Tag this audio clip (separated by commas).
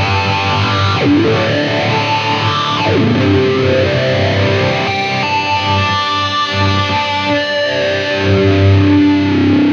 Music